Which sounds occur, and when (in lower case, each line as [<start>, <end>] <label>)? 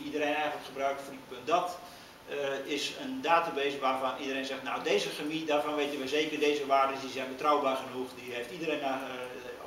[0.00, 1.86] man speaking
[0.01, 9.65] mechanisms
[1.78, 2.08] breathing
[2.22, 9.65] man speaking
[3.60, 3.71] generic impact sounds